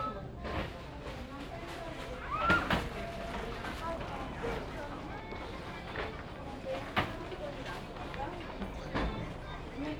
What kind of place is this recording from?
crowded indoor space